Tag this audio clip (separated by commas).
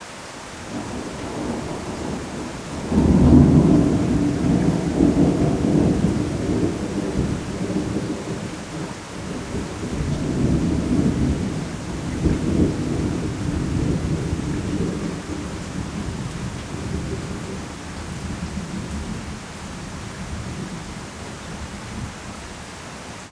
Thunder, Water, Rain, Thunderstorm